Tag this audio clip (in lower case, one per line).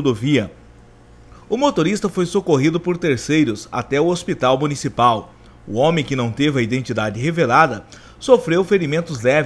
speech